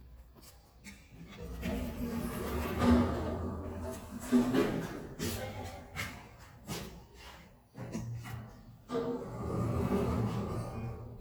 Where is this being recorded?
in an elevator